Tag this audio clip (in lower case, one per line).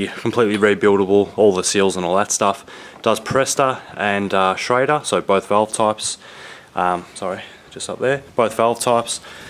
speech